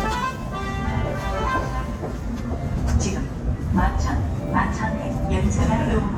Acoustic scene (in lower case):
subway station